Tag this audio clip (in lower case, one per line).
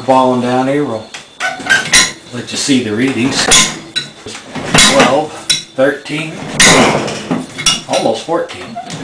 inside a small room
speech